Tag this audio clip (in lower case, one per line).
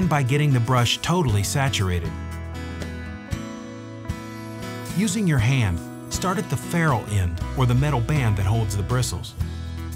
music
speech